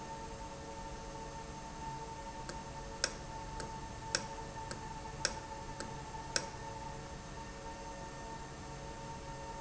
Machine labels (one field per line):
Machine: valve